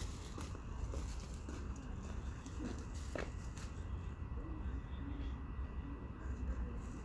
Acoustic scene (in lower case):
park